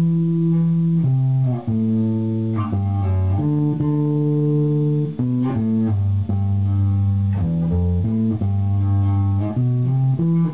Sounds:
Pizzicato

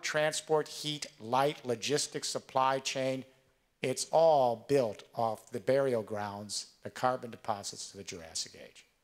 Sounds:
monologue, Speech, man speaking

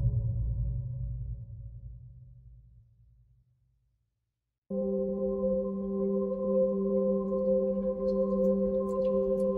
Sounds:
Music, Singing bowl

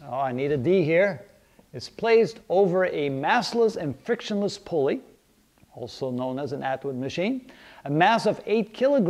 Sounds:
Speech

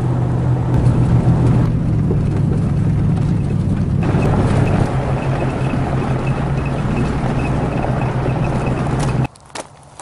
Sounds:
outside, rural or natural

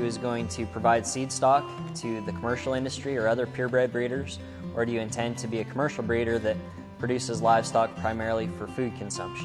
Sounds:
Music, Speech

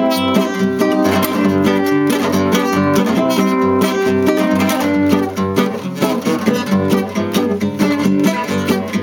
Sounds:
Acoustic guitar, Music, Musical instrument, Strum, Guitar, Plucked string instrument

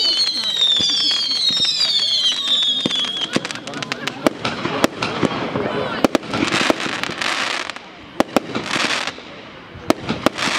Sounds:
Speech, Fireworks

